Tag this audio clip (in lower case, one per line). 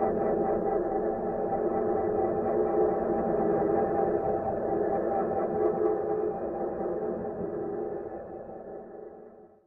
music